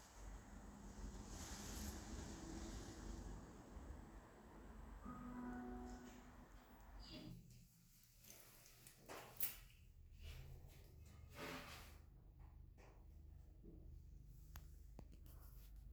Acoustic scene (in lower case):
elevator